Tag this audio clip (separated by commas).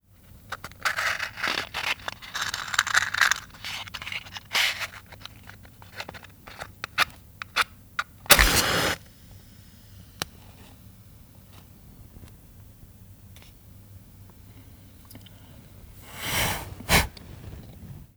Fire